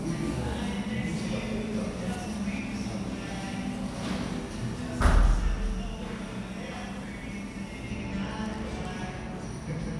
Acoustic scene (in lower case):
cafe